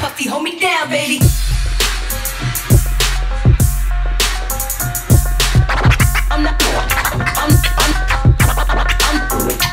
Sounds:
Music, Scratching (performance technique), Electronic music

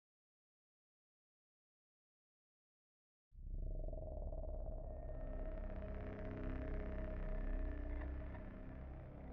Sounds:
Silence, Music

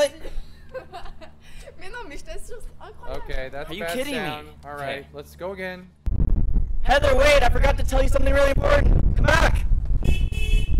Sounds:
Speech

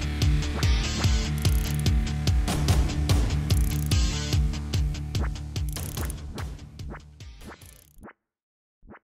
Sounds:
Music

